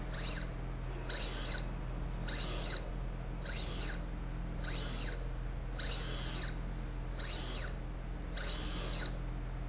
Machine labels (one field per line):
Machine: slide rail